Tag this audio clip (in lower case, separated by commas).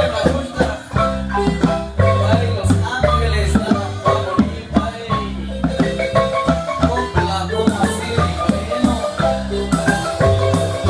marimba, musical instrument, music